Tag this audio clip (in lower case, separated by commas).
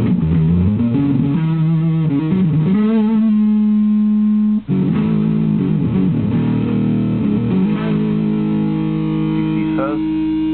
music, speech, inside a small room